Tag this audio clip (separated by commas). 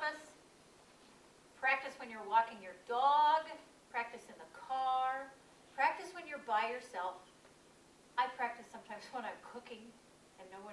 Speech, Female speech